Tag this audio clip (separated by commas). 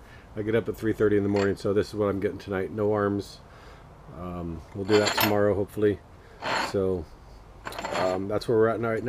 Speech, inside a small room